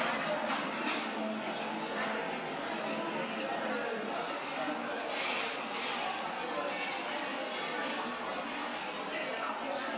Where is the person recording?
in a cafe